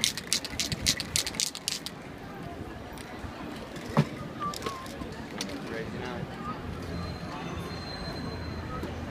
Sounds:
spray, speech

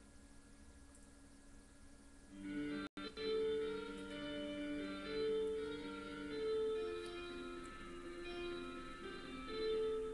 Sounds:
music, tender music

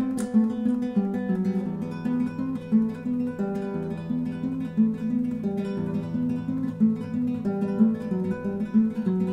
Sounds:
guitar, music, musical instrument

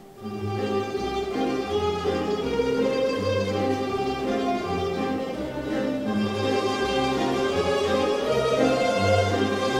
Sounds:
classical music, music, orchestra, mandolin

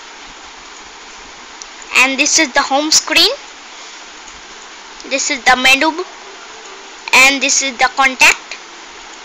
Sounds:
speech

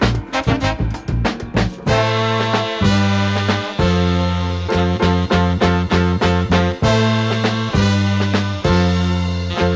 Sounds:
swing music

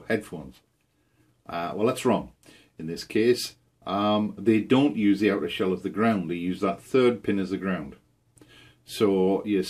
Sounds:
speech

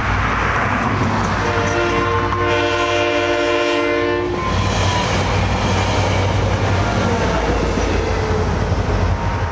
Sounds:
rail transport, railroad car, train, metro, clickety-clack, train horn

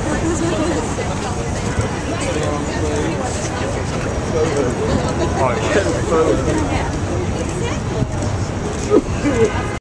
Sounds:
speech, outside, urban or man-made

